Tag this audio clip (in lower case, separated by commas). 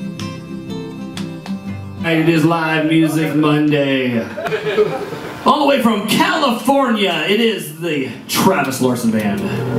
speech, music